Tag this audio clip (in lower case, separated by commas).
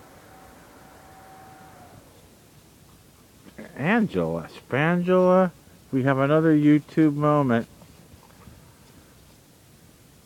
speech